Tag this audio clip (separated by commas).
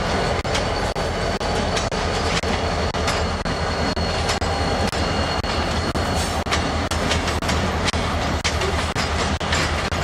Train, train wagon, Rail transport, Vehicle